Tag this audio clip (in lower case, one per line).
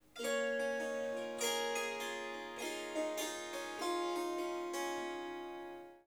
musical instrument
harp
music